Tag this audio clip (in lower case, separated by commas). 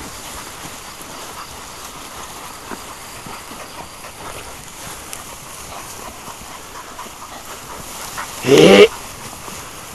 animal, dog